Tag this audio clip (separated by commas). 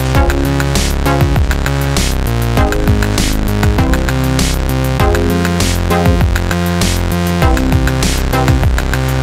Music